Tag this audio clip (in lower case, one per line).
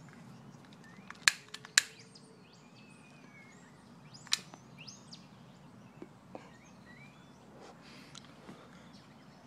animal